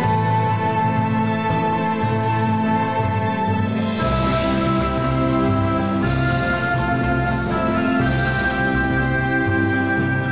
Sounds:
Music

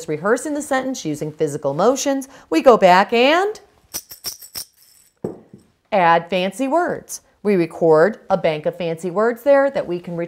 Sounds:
Speech

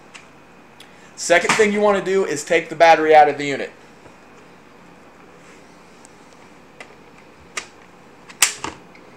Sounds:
Speech

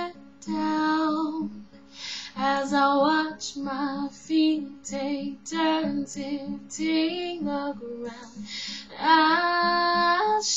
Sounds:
Music

